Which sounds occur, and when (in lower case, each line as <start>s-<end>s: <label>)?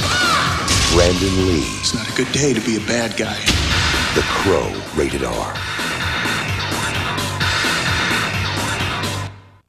0.0s-0.4s: crow
0.0s-2.2s: music
0.9s-1.6s: male speech
1.8s-3.5s: male speech
2.2s-3.4s: background noise
3.4s-9.6s: music
4.1s-4.8s: male speech
4.9s-5.5s: male speech